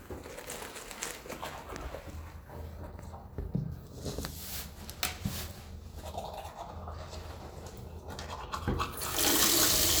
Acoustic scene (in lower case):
restroom